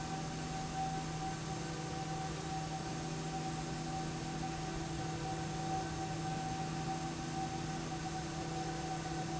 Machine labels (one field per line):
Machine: slide rail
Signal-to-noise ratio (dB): -6 dB